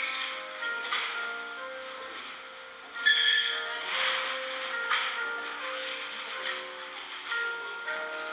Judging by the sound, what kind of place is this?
cafe